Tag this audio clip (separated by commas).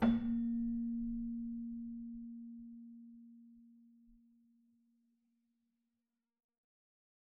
Musical instrument, Music, Keyboard (musical)